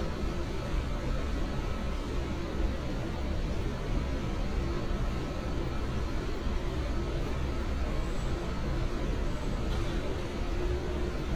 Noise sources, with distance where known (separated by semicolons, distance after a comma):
large-sounding engine, near